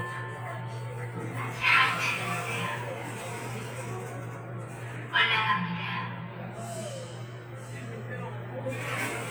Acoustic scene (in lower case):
elevator